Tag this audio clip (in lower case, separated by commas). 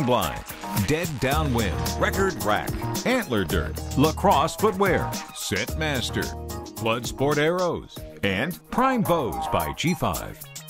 speech, music